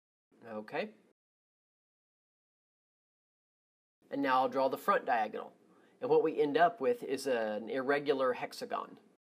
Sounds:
Speech

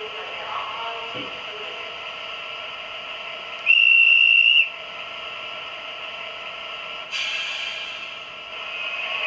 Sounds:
Speech

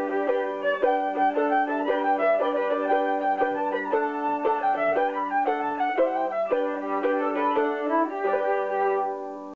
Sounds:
Musical instrument, Pizzicato, Music, fiddle

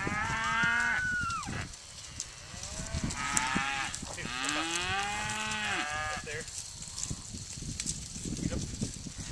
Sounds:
Cattle, cattle mooing, Moo, livestock

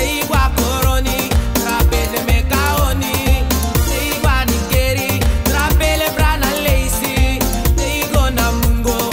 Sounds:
Music, Pop music

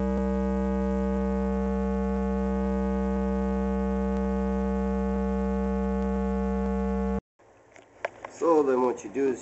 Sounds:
Hum, Mains hum

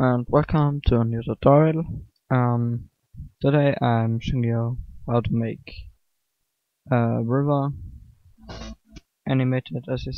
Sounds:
Speech

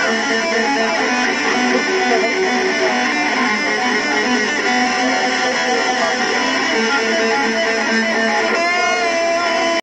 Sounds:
Bass guitar, Musical instrument, Plucked string instrument, Music, Guitar

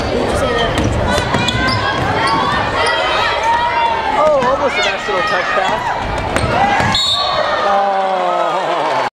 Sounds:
Speech

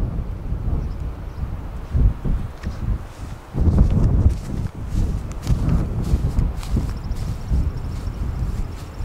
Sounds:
Wind, Wind noise (microphone)

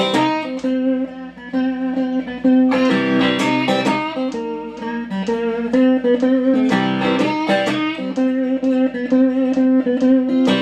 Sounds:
Strum, Music, Guitar, Musical instrument, Plucked string instrument

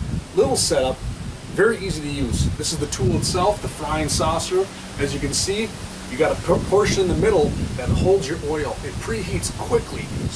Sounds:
Speech

